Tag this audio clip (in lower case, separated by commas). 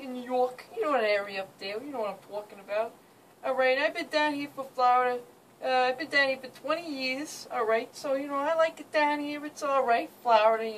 speech